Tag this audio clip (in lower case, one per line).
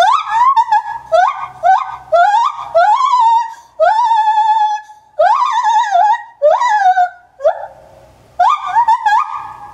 gibbon howling